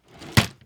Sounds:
Drawer open or close, home sounds

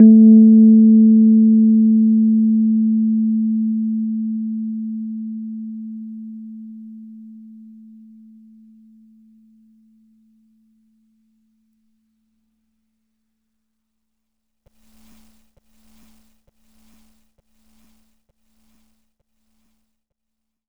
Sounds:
Music, Piano, Keyboard (musical), Musical instrument

